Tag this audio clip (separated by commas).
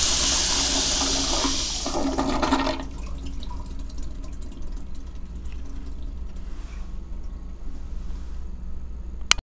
toilet flushing, inside a small room, Toilet flush